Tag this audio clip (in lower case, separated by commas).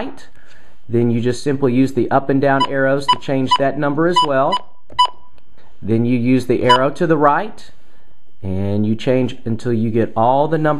inside a small room, speech